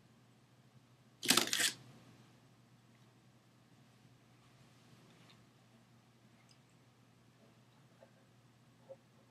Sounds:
Musical instrument, Music, fiddle

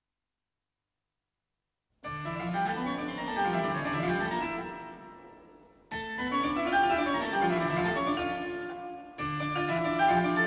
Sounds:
Classical music, Music

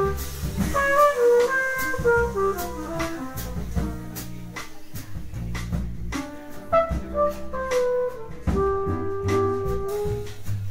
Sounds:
Music, inside a large room or hall, Musical instrument, Speech

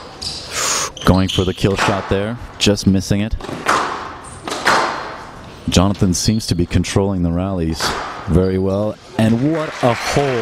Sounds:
inside a large room or hall, Speech

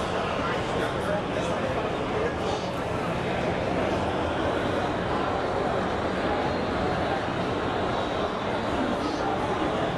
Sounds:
Speech

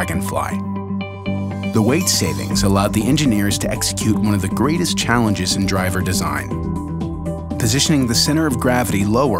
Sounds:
Speech, Music

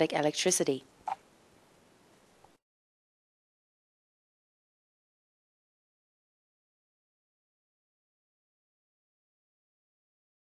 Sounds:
Speech

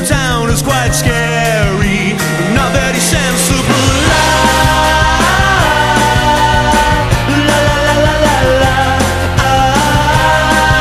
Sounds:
Singing

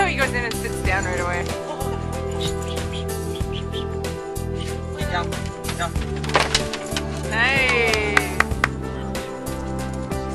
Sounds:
Speech, Music

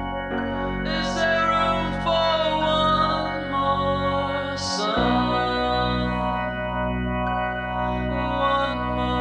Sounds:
Chorus effect

